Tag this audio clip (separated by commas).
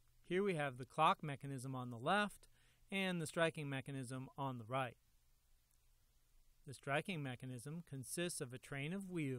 Speech